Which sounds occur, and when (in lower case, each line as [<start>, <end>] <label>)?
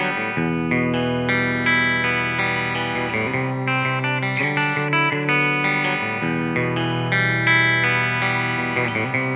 [0.00, 9.35] effects unit
[0.00, 9.35] music